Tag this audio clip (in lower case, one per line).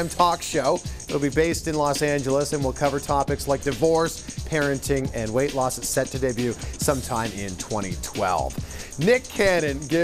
speech
music